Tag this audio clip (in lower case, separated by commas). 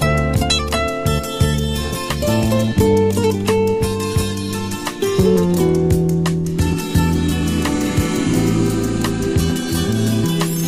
guitar, music, acoustic guitar, electric guitar, musical instrument, strum